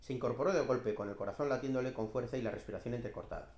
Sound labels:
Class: speech